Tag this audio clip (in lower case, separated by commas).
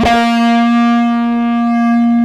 electric guitar, music, guitar, plucked string instrument, musical instrument